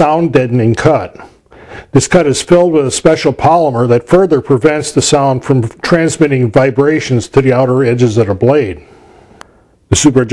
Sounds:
Speech

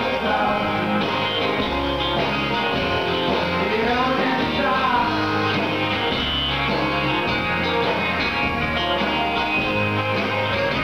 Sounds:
Music

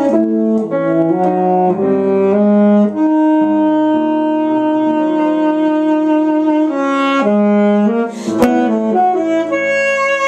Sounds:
Music, Background music

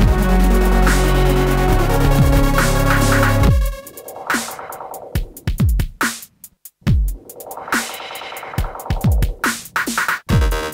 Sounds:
Synthesizer, Music, Dubstep, playing synthesizer, inside a small room

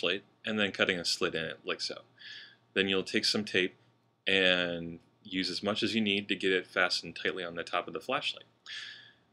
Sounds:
Speech

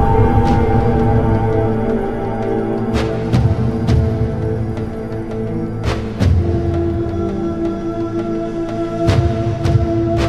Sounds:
Music

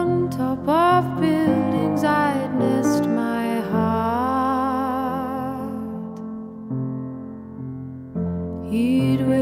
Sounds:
Music

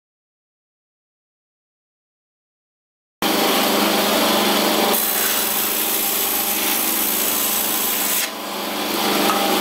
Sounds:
Power tool

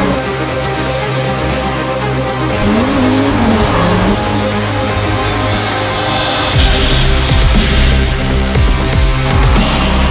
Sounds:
Race car, Car, Vehicle, Music

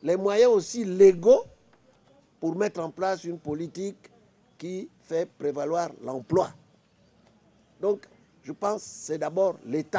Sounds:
Speech

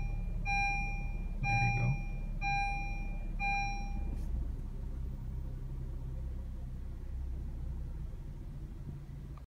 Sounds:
Car, Vehicle, Medium engine (mid frequency)

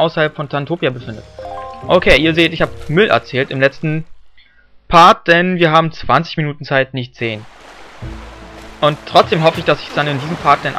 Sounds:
Speech, Music, Rustling leaves

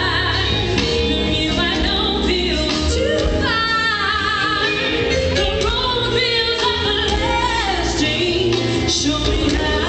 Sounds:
Music

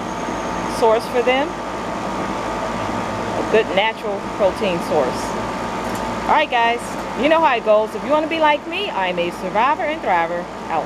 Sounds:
Speech

